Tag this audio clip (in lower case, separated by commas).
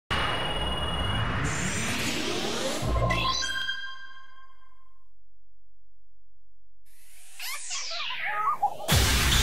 music